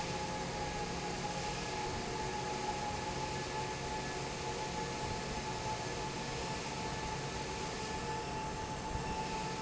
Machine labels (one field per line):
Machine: fan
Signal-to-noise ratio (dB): -6 dB